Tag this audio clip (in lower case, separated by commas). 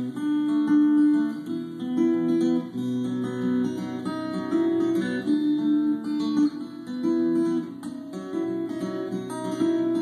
music